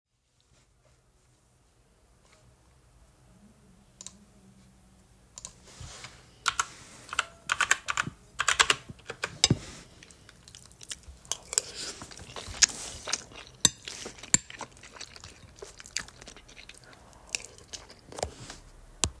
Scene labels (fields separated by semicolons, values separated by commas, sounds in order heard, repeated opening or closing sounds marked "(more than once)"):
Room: bedroom; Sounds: keyboard typing, cutlery and dishes